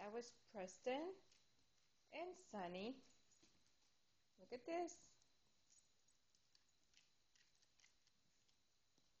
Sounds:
Speech

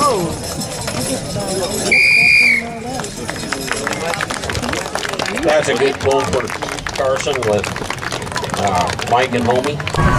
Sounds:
Speech

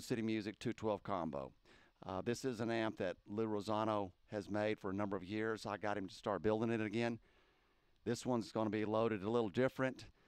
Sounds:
Speech

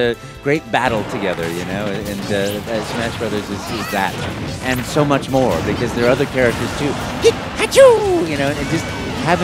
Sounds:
Music, Speech

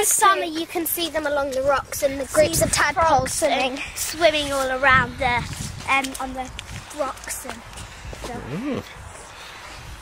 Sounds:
Speech

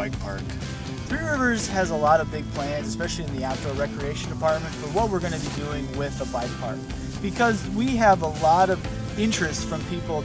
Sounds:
Speech, Music

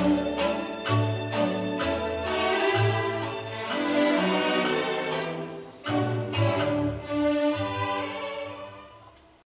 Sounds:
Music

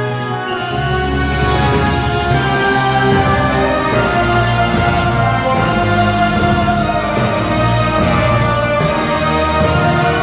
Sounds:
Music

